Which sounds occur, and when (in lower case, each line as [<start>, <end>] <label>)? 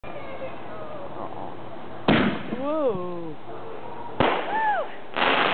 [0.00, 5.53] mechanisms
[0.03, 0.57] human voice
[2.55, 3.37] man speaking
[3.49, 4.21] speech
[4.49, 4.91] whoop
[5.16, 5.53] fireworks